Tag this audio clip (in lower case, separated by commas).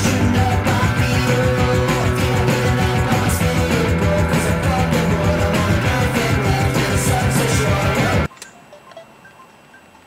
music